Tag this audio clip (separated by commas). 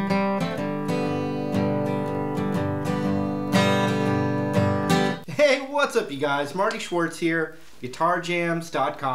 Acoustic guitar, Musical instrument, Music, Guitar, Plucked string instrument, Speech